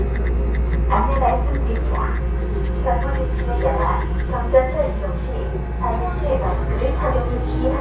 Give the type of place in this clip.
subway train